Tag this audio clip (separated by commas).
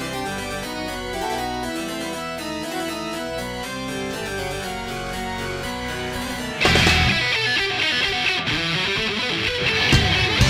Music, Sound effect